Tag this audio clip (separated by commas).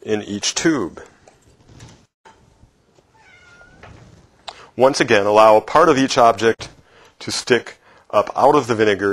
Speech